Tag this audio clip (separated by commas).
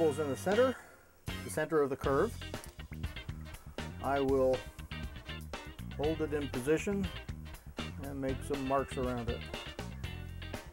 Music, Speech